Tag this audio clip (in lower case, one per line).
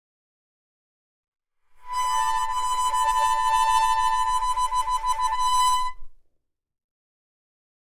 harmonica
music
musical instrument